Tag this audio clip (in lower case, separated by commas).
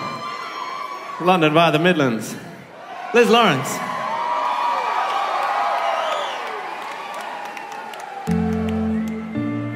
music, speech